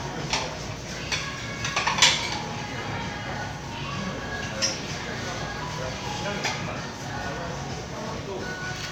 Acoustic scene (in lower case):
crowded indoor space